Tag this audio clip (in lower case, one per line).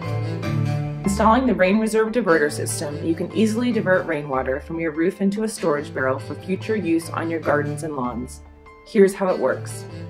speech
music